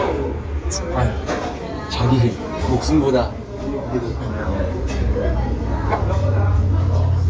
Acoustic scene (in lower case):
restaurant